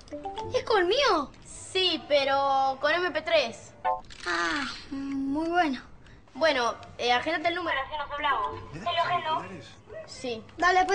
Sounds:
speech

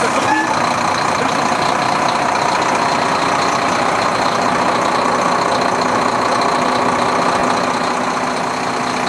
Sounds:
vehicle

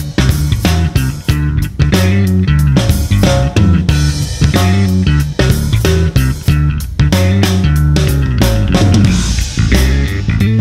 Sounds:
playing bass drum

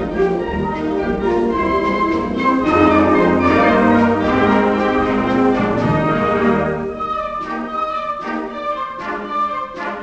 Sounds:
music

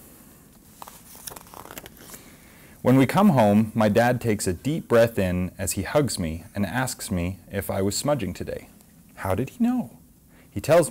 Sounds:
speech
inside a small room

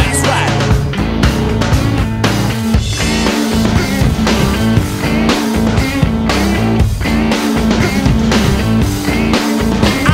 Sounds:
music
blues

